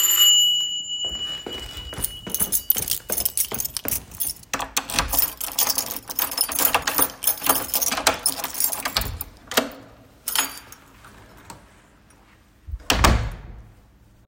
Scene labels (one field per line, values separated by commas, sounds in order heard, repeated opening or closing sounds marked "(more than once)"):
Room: hallway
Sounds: bell ringing, keys, footsteps, door (more than once)